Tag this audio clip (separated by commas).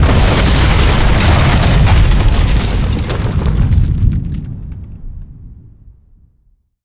Boom, Explosion